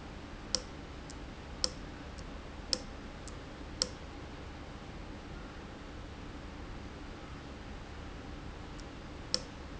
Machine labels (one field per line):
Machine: valve